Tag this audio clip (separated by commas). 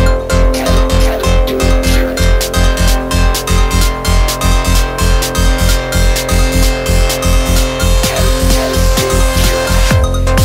Music